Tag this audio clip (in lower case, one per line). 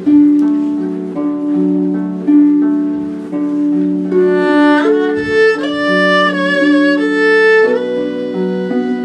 playing harp